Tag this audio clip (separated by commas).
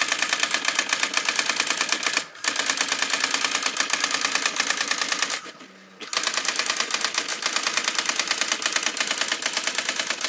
Printer